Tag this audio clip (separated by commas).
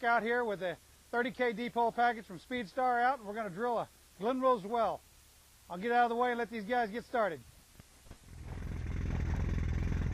Speech